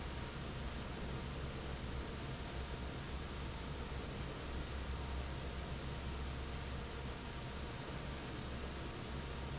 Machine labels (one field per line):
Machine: fan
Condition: normal